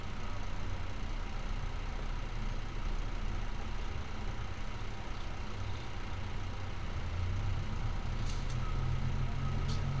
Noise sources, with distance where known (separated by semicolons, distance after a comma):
medium-sounding engine, near